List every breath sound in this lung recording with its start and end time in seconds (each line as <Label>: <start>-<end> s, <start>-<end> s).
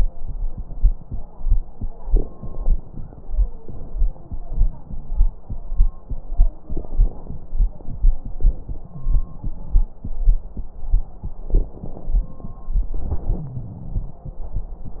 Inhalation: 2.01-3.58 s, 6.64-8.37 s, 11.47-12.95 s
Exhalation: 3.60-5.43 s, 8.40-10.05 s, 12.98-14.29 s
Wheeze: 4.22-5.31 s, 8.90-9.41 s, 13.37-14.22 s
Crackles: 2.01-3.58 s, 3.60-5.43 s, 6.64-8.37 s, 11.47-12.95 s